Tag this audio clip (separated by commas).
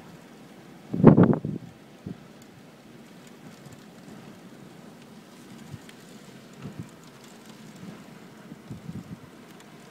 Thunderstorm